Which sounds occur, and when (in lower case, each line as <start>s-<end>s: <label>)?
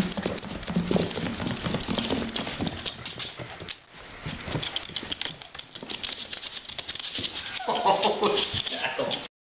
0.0s-3.7s: dog
0.0s-9.2s: mechanisms
4.2s-9.2s: dog
4.2s-4.6s: generic impact sounds
4.8s-5.3s: generic impact sounds
7.1s-7.3s: generic impact sounds
7.5s-8.6s: laughter
8.5s-8.6s: generic impact sounds
8.6s-9.2s: male speech